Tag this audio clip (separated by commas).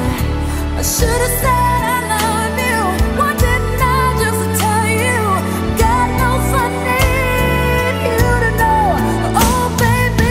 Music, Pop music